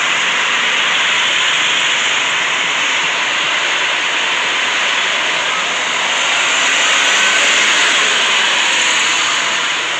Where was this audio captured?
on a street